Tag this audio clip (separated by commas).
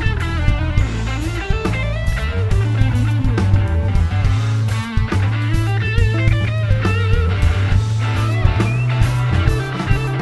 Music, Psychedelic rock